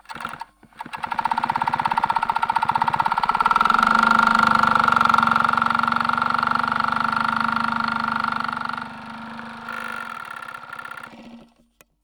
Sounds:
mechanisms

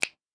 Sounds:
hands, finger snapping

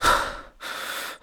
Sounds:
respiratory sounds, breathing

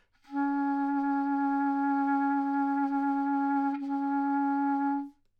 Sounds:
music, wind instrument, musical instrument

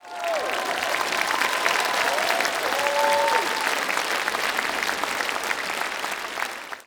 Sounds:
applause, human group actions

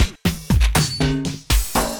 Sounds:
percussion, music, musical instrument, drum kit

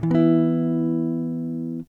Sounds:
plucked string instrument, musical instrument, electric guitar, strum, music, guitar

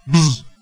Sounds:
wild animals, animal, buzz, insect

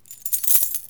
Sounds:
coin (dropping), domestic sounds

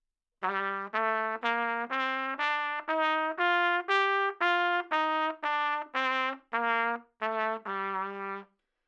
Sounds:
musical instrument, brass instrument, trumpet, music

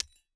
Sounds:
glass, shatter

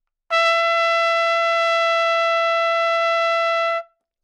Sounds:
brass instrument, musical instrument, music, trumpet

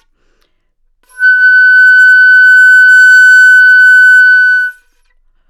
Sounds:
musical instrument, wind instrument, music

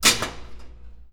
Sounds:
dishes, pots and pans, domestic sounds

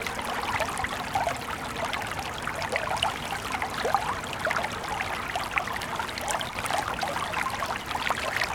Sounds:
water, stream

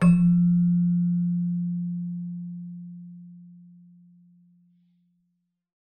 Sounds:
music, musical instrument, keyboard (musical)

